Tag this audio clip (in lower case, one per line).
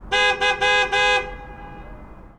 alarm
motor vehicle (road)
vehicle
honking
car